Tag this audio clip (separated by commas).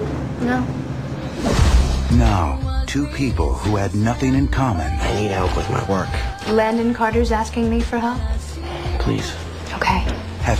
Speech, Music